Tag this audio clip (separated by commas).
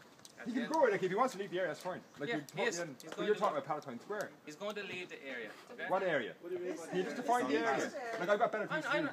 Speech